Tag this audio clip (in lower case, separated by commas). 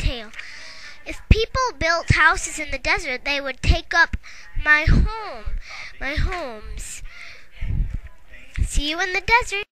speech